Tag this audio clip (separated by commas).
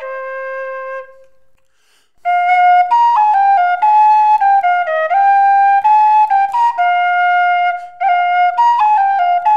Music, playing flute, Flute